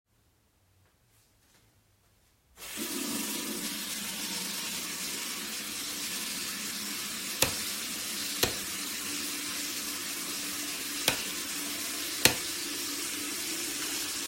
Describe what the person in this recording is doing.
I turned on the water. Then turned the light on and off. After that I switched the light on and off again.